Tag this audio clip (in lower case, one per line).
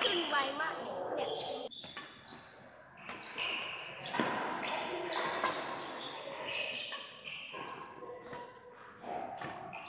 playing badminton